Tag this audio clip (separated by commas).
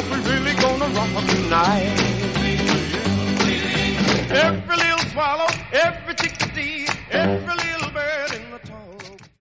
Music